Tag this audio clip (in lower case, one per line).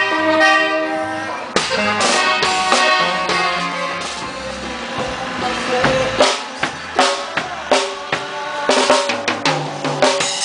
music